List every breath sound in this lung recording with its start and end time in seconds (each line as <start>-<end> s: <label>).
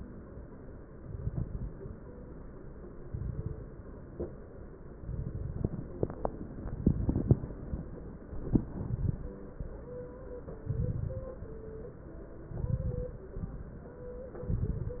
0.99-1.86 s: inhalation
0.99-1.86 s: crackles
2.96-3.74 s: inhalation
2.96-3.74 s: crackles
5.01-5.79 s: inhalation
5.01-5.79 s: crackles
6.67-7.53 s: inhalation
6.67-7.53 s: crackles
8.27-9.28 s: inhalation
8.27-9.28 s: crackles
10.62-11.40 s: inhalation
10.62-11.40 s: crackles
12.50-13.28 s: inhalation
12.50-13.28 s: crackles
14.44-15.00 s: inhalation
14.44-15.00 s: crackles